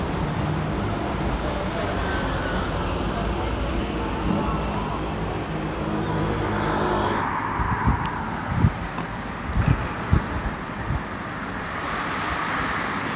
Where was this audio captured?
on a street